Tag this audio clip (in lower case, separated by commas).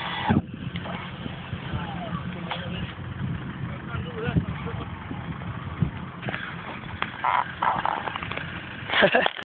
speech